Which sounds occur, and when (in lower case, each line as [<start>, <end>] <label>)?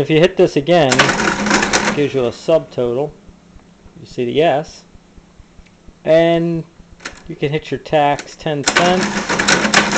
[0.00, 0.88] man speaking
[0.00, 9.95] mechanisms
[0.88, 1.95] cash register
[1.94, 3.12] man speaking
[4.03, 4.83] man speaking
[5.59, 5.71] tick
[6.03, 6.63] man speaking
[6.98, 7.11] tick
[7.24, 9.01] man speaking
[8.13, 8.25] tick
[8.63, 9.95] cash register